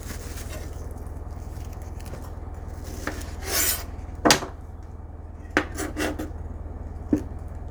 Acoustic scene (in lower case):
kitchen